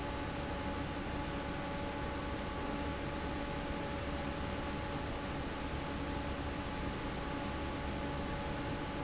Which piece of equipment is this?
fan